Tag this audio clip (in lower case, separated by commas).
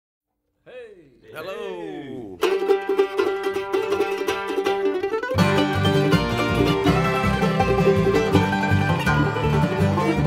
banjo, speech, guitar, musical instrument, mandolin, music, plucked string instrument, country